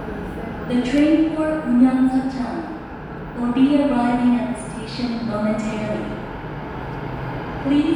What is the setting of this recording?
subway station